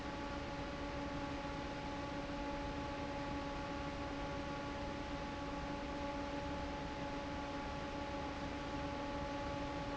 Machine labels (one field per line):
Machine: fan